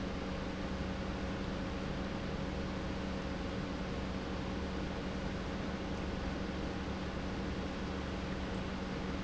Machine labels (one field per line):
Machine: pump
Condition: normal